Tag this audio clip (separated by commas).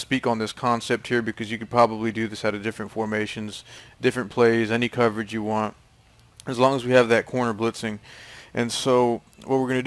Speech